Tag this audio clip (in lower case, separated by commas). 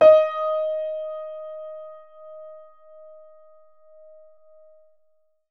piano, music, musical instrument, keyboard (musical)